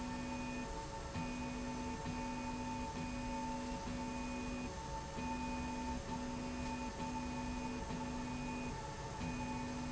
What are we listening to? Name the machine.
slide rail